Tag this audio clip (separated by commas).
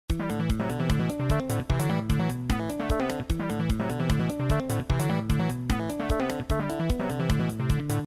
Music